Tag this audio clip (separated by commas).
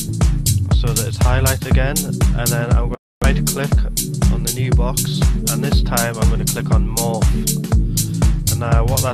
Speech, Music